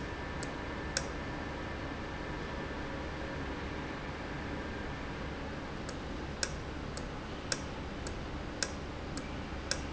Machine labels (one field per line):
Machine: valve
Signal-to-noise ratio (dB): -6 dB